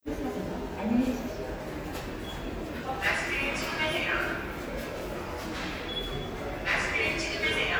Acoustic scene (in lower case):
subway station